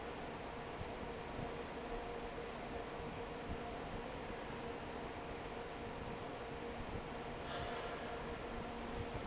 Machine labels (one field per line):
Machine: fan